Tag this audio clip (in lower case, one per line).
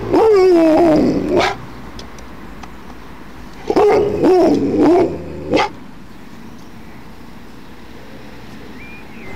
animal
pets
dog
growling